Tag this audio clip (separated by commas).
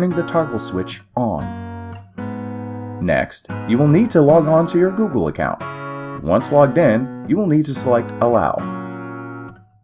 Speech, Music